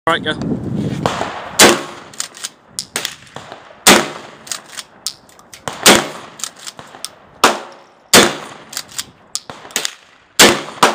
A man speaks briefly just before numerous guns are shot off